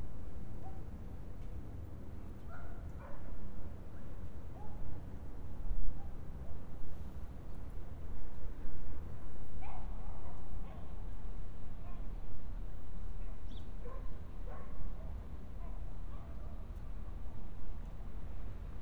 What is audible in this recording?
dog barking or whining